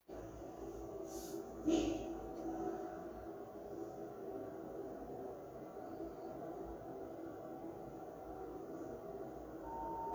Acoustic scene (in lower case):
elevator